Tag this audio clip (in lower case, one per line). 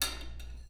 dishes, pots and pans
home sounds
cutlery